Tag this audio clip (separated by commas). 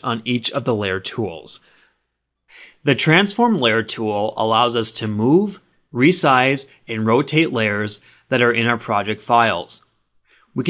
Speech